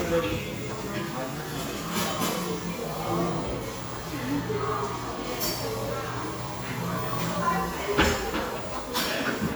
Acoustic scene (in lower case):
cafe